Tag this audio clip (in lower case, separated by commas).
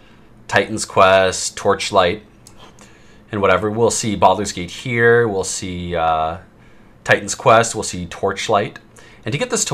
speech